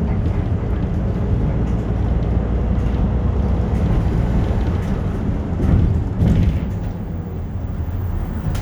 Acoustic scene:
bus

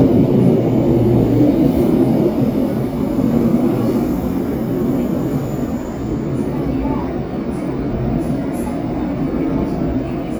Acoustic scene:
subway train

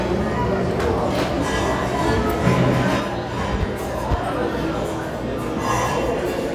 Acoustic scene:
restaurant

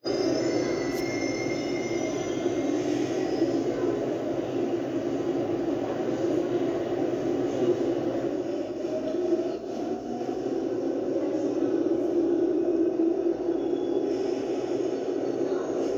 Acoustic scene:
subway station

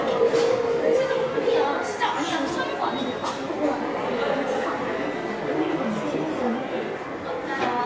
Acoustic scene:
subway station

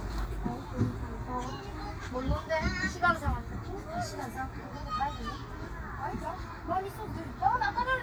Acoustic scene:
park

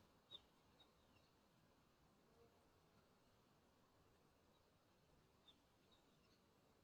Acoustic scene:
park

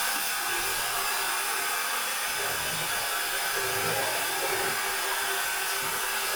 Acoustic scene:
restroom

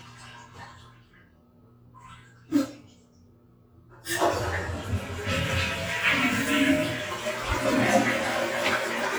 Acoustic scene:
restroom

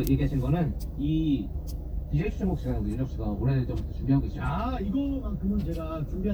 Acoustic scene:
car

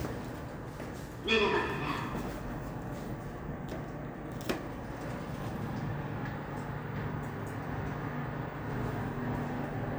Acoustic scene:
elevator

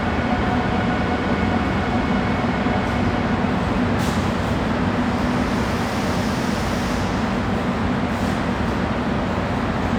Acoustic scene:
subway station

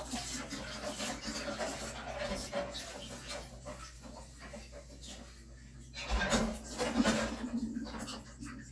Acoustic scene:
kitchen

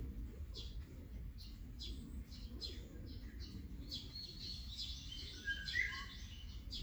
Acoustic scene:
park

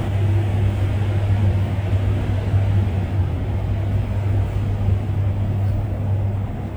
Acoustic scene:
bus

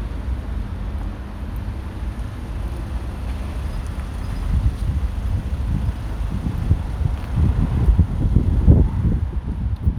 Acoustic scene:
street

